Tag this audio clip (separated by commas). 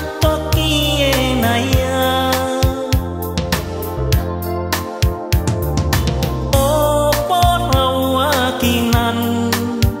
Music